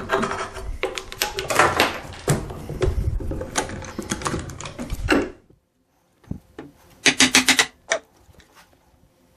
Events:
[0.00, 5.53] generic impact sounds
[5.36, 9.35] mechanisms
[6.18, 6.40] generic impact sounds
[6.54, 7.69] generic impact sounds
[7.88, 8.74] generic impact sounds

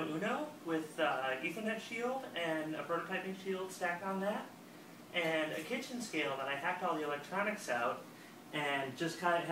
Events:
[0.00, 0.48] man speaking
[0.00, 9.51] mechanisms
[0.64, 2.23] man speaking
[2.36, 4.51] man speaking
[5.11, 8.06] man speaking
[5.12, 5.81] generic impact sounds
[8.08, 8.39] breathing
[8.52, 9.51] man speaking

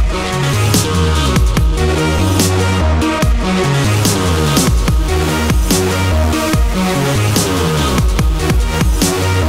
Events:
[0.00, 9.45] music

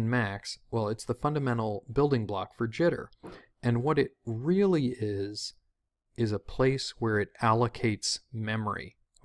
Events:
[0.01, 9.24] background noise
[0.05, 0.52] male speech
[0.70, 3.11] male speech
[3.59, 4.08] male speech
[4.30, 5.53] male speech
[6.24, 8.94] male speech
[9.14, 9.24] male speech

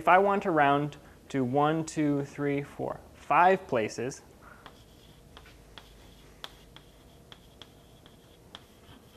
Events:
[0.00, 0.94] male speech
[0.00, 9.15] background noise
[1.00, 1.14] breathing
[1.23, 2.94] male speech
[3.18, 4.22] male speech
[4.36, 4.77] breathing
[4.60, 5.21] writing
[5.33, 5.57] writing
[5.71, 6.22] writing
[6.37, 7.15] writing
[7.29, 8.38] writing
[8.51, 9.15] writing

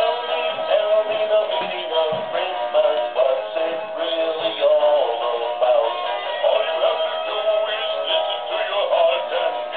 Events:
[0.00, 9.75] music
[0.00, 9.75] synthetic singing
[0.58, 0.76] tap
[1.06, 1.26] tap
[1.43, 1.66] tap
[2.02, 2.23] tap
[4.37, 4.73] thud

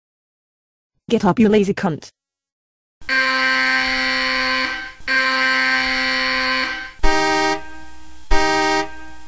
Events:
[0.92, 2.50] mechanisms
[1.06, 2.11] female speech
[2.98, 9.25] mechanisms
[3.00, 4.91] alarm clock
[5.08, 7.70] alarm clock
[8.28, 8.91] alarm clock

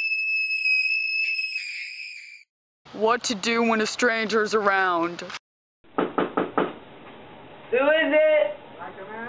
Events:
[0.00, 2.46] screaming
[2.86, 5.42] background noise
[2.93, 5.40] woman speaking
[5.19, 5.40] generic impact sounds
[5.84, 9.25] mechanisms
[6.00, 6.74] knock
[7.04, 7.13] walk
[7.71, 9.25] conversation
[7.72, 8.62] man speaking
[7.73, 9.25] conversation
[8.76, 9.25] man speaking

